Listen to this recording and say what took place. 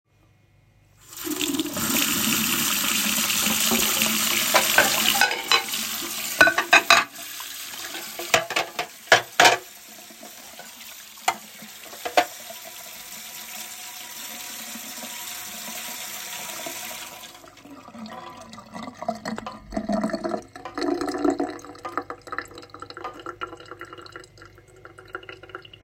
I turned on the tap and started rinsing the dishes. I stacked the plates and clinked the cutlery together as I sorted it. Then I turned off the water once everything was clean.